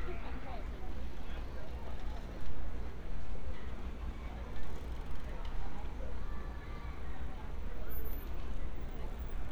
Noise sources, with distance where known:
background noise

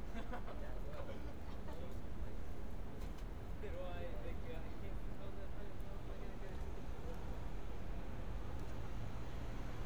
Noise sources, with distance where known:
person or small group talking, near

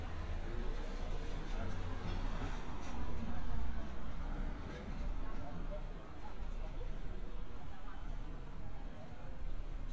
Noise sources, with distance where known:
background noise

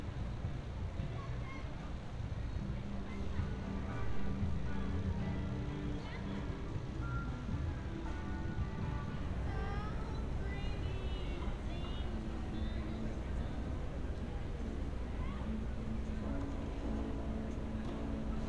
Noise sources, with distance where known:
music from an unclear source

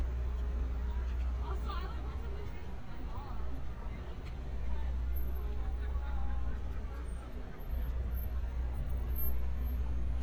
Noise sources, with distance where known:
engine of unclear size; person or small group talking, far

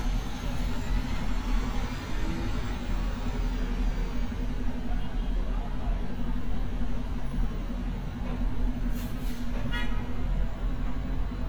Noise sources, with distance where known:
car horn, near

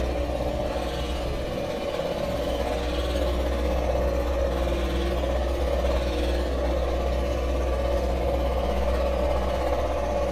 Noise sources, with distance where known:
jackhammer, far

